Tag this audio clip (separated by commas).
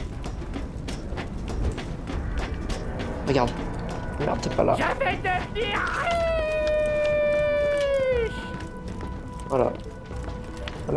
Speech